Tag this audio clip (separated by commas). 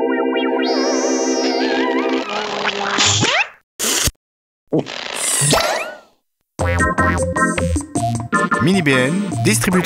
Speech, Music